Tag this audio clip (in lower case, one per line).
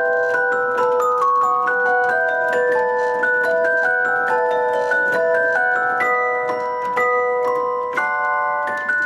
music
keyboard (musical)
musical instrument
organ